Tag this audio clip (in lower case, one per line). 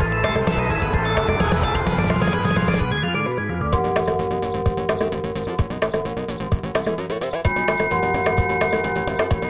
music